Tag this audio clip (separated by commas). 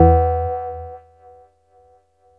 Bell